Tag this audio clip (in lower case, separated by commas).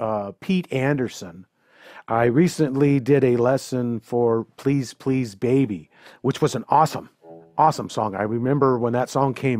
speech